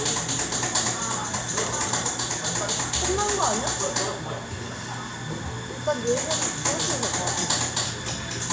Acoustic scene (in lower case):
cafe